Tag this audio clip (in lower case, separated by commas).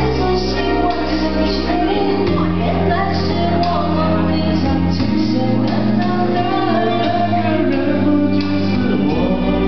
music